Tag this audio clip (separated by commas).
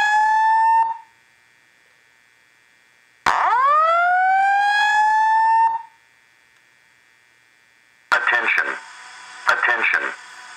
Speech, Fire alarm